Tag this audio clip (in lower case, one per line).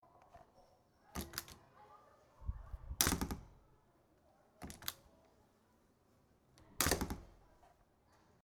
domestic sounds
slam
door